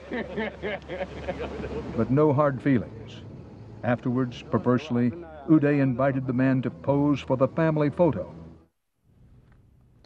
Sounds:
Speech

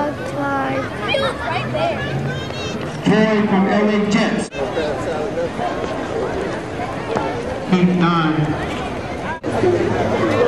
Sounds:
Speech, Run, outside, urban or man-made

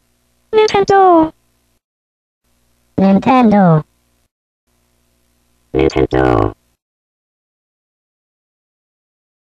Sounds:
Speech

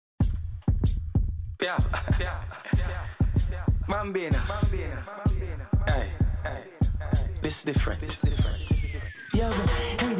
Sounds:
Reggae, Music

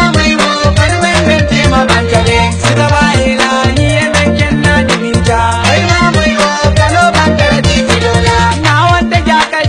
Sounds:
Music

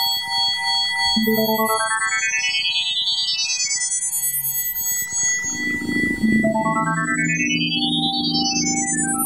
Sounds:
Sound effect, Music

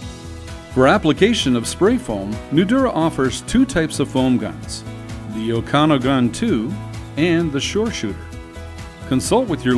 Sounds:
Music, Speech

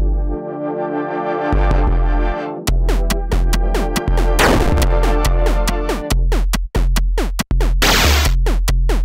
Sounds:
Synthesizer, inside a large room or hall, Music

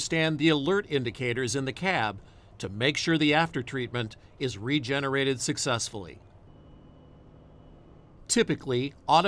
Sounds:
Speech

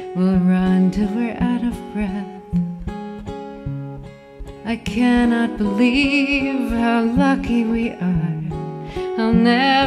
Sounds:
Music

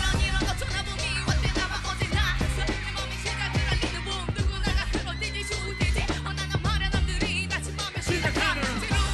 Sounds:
Music, Dance music

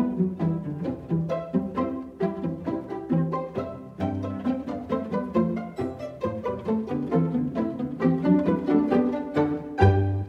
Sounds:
Music

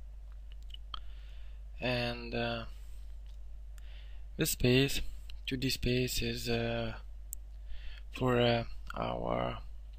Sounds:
Speech

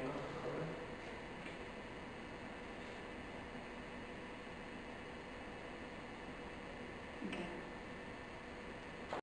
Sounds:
Speech

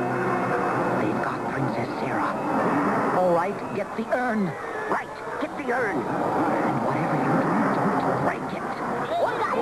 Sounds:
Music, Speech

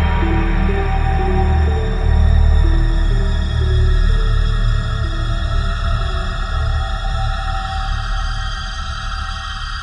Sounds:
Music, Scary music

